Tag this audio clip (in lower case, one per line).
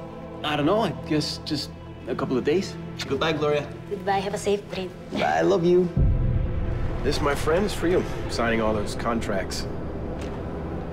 music
speech